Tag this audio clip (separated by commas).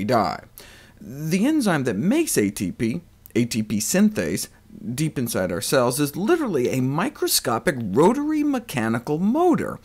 Speech